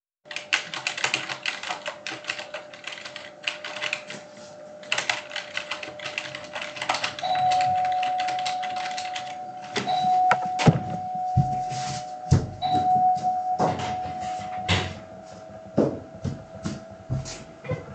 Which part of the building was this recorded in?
living room